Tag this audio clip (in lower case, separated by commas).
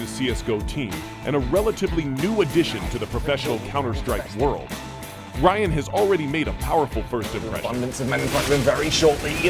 speech, music